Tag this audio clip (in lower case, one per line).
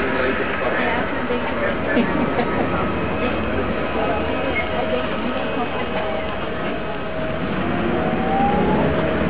vehicle
speech